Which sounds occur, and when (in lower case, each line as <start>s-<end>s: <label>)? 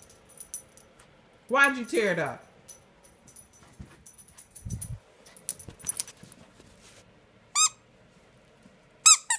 0.0s-0.8s: generic impact sounds
0.0s-9.3s: mechanisms
0.9s-1.0s: generic impact sounds
1.5s-2.4s: female singing
2.7s-2.8s: generic impact sounds
3.0s-3.1s: generic impact sounds
3.2s-3.8s: generic impact sounds
3.7s-3.8s: wind noise (microphone)
4.0s-4.8s: generic impact sounds
4.6s-5.0s: wind noise (microphone)
5.2s-6.1s: generic impact sounds
6.1s-7.0s: surface contact
7.5s-7.7s: squeak
9.0s-9.3s: squeak